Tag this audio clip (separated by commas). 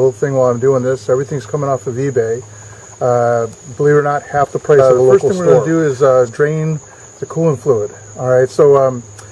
Cricket, Insect